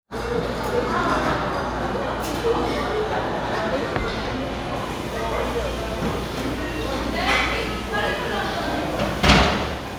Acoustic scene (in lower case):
restaurant